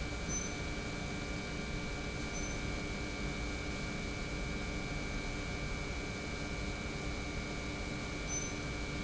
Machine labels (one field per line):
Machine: pump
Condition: normal